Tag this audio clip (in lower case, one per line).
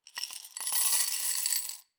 coin (dropping)
glass
domestic sounds